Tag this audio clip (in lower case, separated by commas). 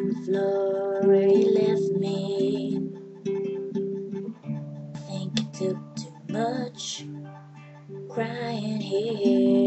female singing, music